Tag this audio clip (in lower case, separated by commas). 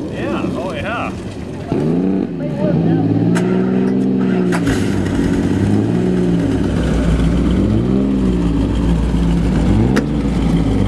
speech, vehicle, car, accelerating, motor vehicle (road), car passing by